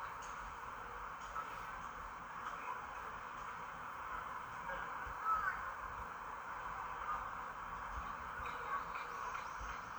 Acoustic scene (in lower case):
park